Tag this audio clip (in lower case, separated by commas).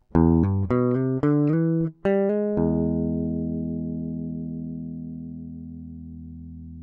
music, guitar, plucked string instrument, musical instrument